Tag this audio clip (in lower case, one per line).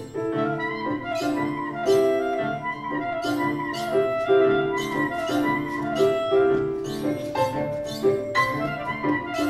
dance music
music